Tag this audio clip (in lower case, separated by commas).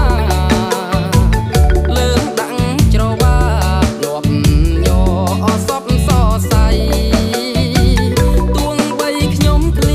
music